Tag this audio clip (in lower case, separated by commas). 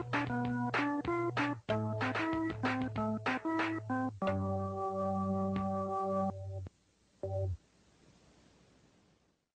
music